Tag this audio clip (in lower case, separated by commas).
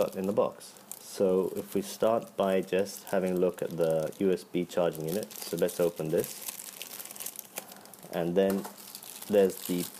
crumpling, speech